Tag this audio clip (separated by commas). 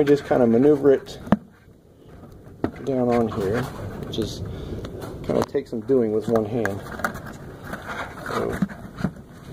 Speech